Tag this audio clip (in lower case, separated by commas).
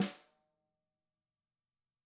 drum, percussion, musical instrument, music, snare drum